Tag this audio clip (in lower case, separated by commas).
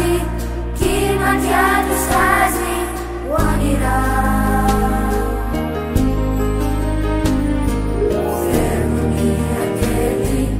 music, christmas music